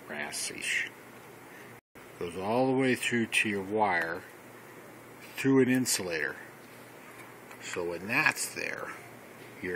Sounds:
speech
inside a small room

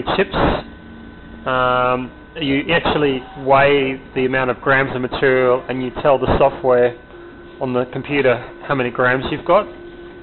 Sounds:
speech
printer

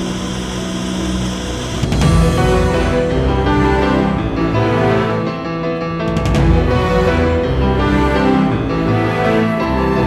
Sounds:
music

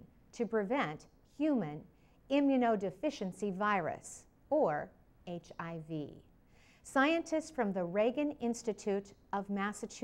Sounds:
speech

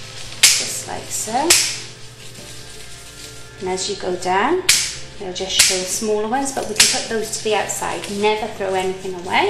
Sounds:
speech
music

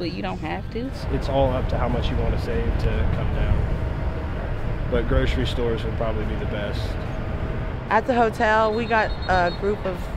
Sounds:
speech
vehicle

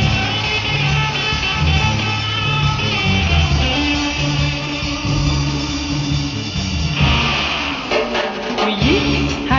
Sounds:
music

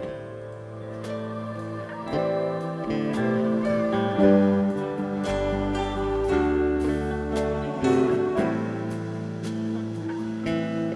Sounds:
music

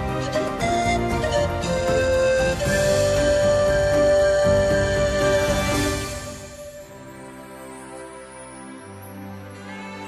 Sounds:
music
background music
flute

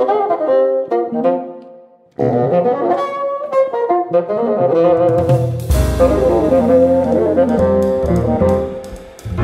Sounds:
playing bassoon

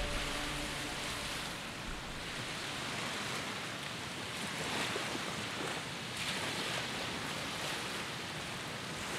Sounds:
outside, rural or natural

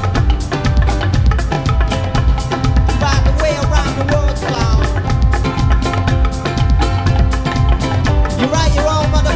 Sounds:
music

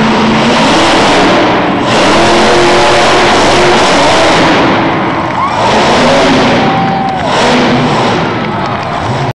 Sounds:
vehicle
truck

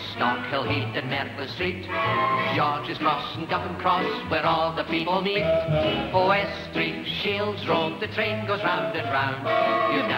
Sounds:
music
techno

